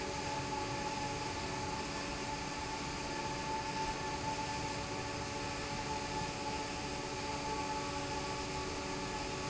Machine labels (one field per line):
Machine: fan